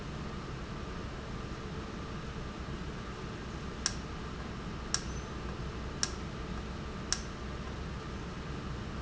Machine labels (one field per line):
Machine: valve